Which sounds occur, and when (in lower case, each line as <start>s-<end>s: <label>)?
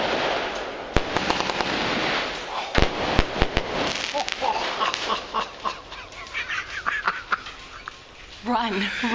0.0s-7.9s: fireworks
0.0s-9.1s: wind
4.1s-4.6s: laughter
4.7s-5.2s: laughter
5.3s-5.8s: laughter
5.9s-7.8s: laughter
8.4s-8.9s: female speech
8.5s-9.1s: breathing
9.0s-9.1s: female speech